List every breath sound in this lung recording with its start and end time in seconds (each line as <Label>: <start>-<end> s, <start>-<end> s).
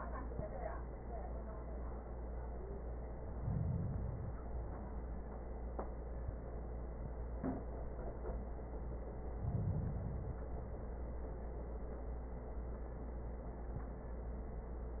Inhalation: 3.14-4.42 s, 9.28-10.49 s
Exhalation: 4.42-5.97 s, 10.48-11.69 s